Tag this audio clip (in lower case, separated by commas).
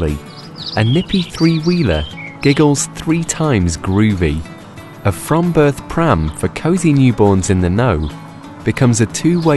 music, speech